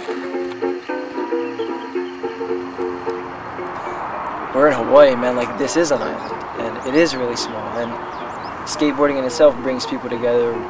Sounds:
speech
music

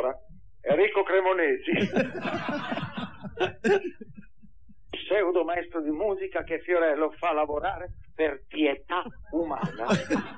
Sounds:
speech

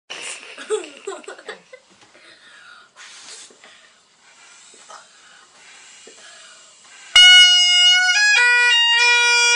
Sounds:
playing bagpipes

